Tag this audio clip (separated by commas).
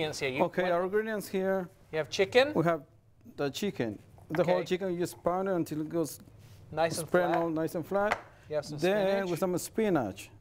Speech